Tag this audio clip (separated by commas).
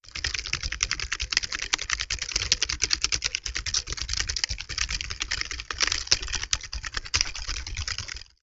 Typing, home sounds